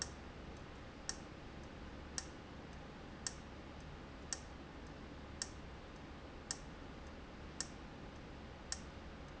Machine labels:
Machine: valve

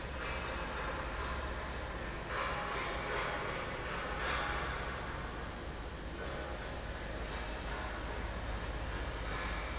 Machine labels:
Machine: fan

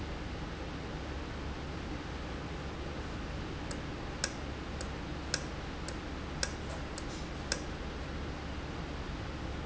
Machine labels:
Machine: valve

